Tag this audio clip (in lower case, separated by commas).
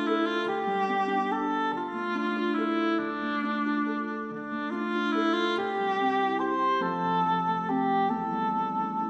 french horn, music